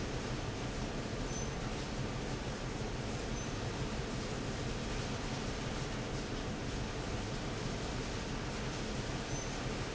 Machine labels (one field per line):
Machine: fan